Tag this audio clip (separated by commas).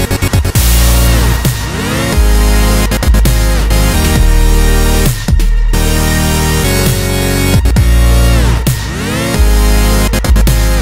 Dubstep, Music